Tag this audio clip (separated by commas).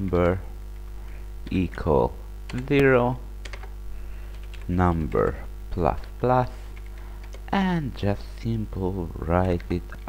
Speech